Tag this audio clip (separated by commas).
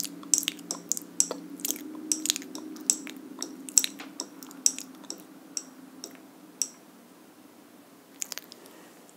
lip smacking